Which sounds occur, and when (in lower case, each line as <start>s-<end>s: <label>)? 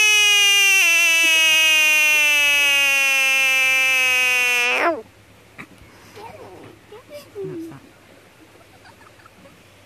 0.0s-5.0s: frog
0.0s-9.8s: background noise
5.6s-5.6s: tick
5.9s-8.0s: child speech
8.1s-9.6s: laughter